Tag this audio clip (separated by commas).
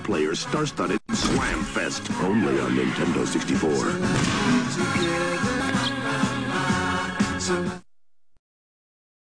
Speech, Music